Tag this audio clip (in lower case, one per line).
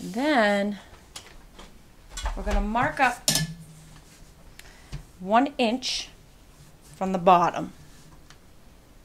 speech